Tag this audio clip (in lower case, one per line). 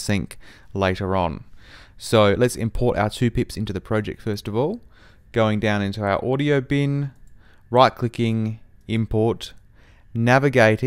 speech